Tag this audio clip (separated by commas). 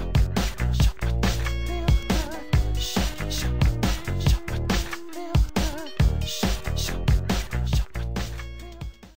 Music